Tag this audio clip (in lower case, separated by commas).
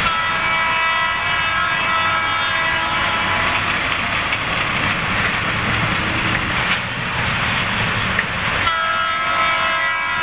vehicle, train wagon, train